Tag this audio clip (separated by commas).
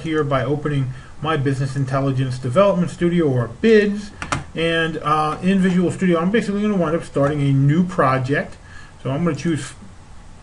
Speech